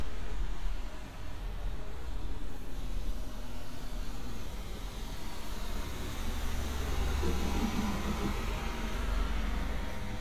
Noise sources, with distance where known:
engine of unclear size, near

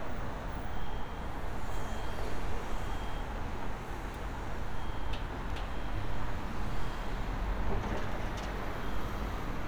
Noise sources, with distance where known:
unidentified alert signal

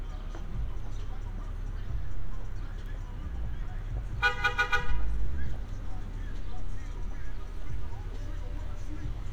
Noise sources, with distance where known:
car horn, near
music from an unclear source, near

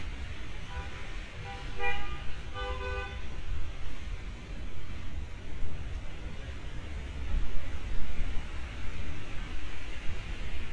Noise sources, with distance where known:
car horn, near

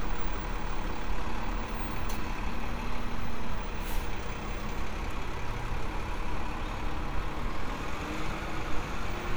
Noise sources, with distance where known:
engine of unclear size

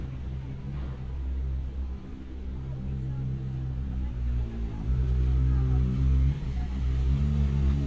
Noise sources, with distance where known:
medium-sounding engine, near
person or small group talking, far

